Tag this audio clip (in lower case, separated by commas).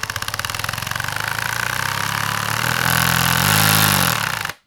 tools